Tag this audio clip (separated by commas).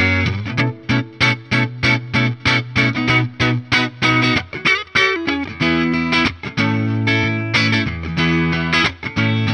Distortion, Electric guitar, Music